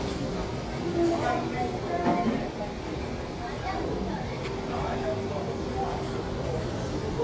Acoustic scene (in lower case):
restaurant